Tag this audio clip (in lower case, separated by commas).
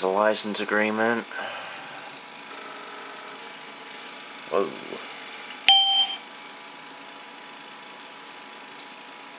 speech